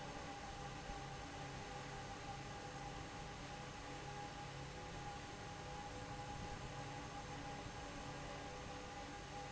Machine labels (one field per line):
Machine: fan